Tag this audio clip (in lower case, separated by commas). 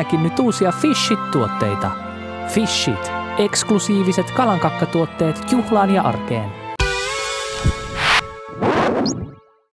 music, speech